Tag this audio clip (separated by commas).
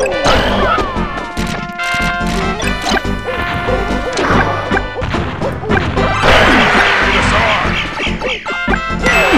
Smash, thwack